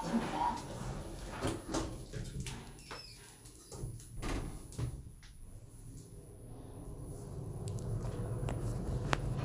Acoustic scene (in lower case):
elevator